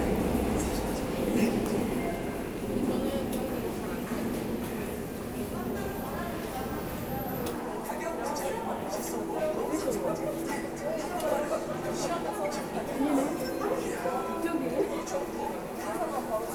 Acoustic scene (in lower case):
subway station